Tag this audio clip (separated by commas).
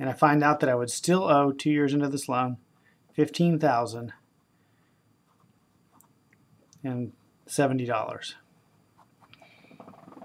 Speech